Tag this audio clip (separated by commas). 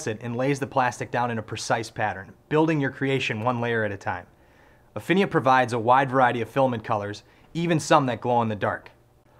Speech